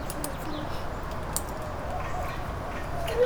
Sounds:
Bird, Animal, Wild animals

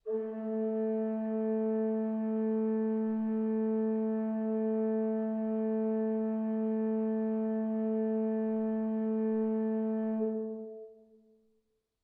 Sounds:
Organ, Music, Keyboard (musical), Musical instrument

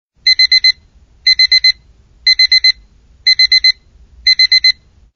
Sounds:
Alarm

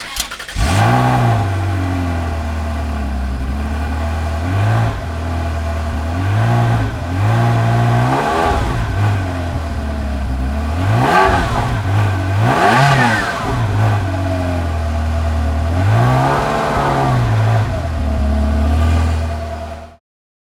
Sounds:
Vehicle

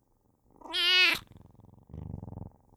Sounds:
Cat, Purr, Domestic animals, Animal, Meow

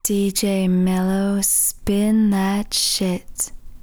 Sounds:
Human voice, Speech, woman speaking

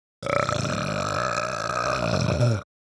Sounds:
Burping

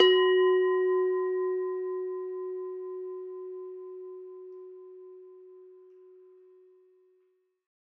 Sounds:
Bell

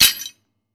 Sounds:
Tools

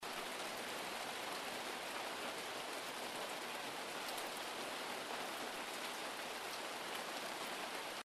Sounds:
Water, Rain

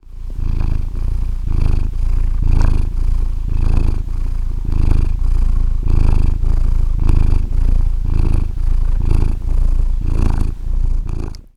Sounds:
Cat, pets, Purr, Animal

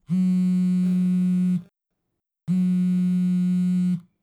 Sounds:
Telephone, Alarm

